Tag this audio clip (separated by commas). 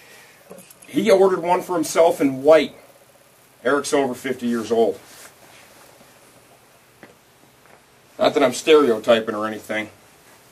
Speech